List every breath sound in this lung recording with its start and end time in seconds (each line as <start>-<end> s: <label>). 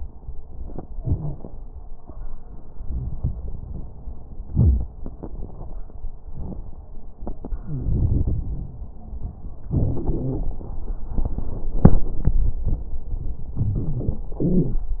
7.57-7.93 s: wheeze
7.57-8.93 s: inhalation
9.73-10.72 s: exhalation
9.73-10.72 s: crackles
13.57-14.31 s: inhalation
13.57-14.31 s: wheeze
14.34-15.00 s: exhalation
14.34-15.00 s: wheeze